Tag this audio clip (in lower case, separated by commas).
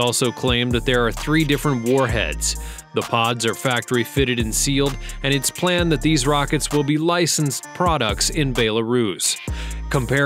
firing cannon